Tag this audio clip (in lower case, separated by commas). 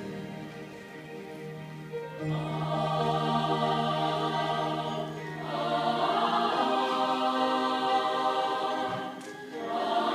music